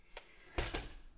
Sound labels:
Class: window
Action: opening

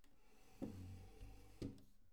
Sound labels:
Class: furniture moving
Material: wooden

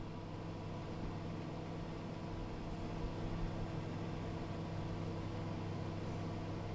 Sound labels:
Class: microwave oven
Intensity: low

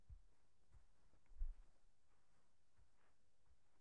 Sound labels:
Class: footsteps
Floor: carpet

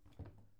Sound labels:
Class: cupboard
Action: opening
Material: wooden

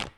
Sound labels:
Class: object falling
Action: being thrown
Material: plastic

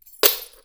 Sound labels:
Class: object falling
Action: being thrown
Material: metal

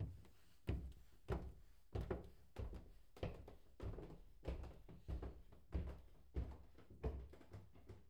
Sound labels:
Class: footsteps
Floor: wooden floor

